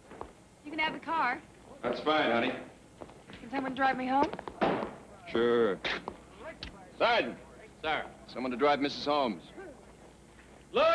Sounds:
speech

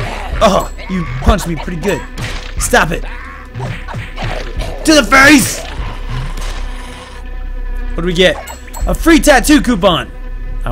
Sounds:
music
speech

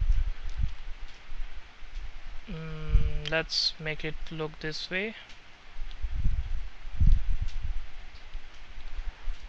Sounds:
speech

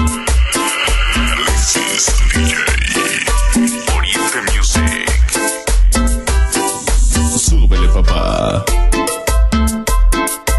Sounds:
music
disco

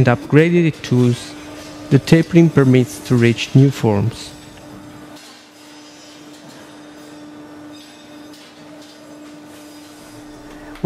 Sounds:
speech

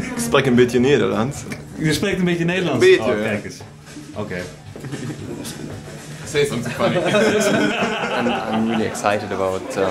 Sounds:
speech

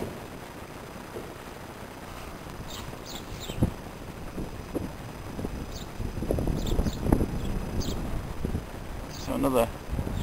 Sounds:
speech
outside, rural or natural

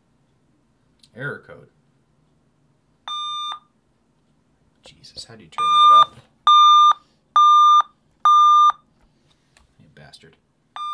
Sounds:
inside a small room
speech

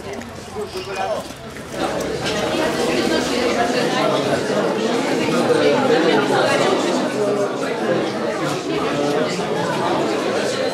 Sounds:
speech

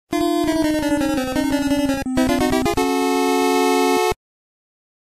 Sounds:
video game music
music

